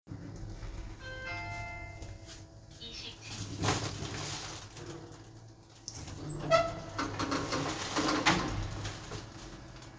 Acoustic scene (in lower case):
elevator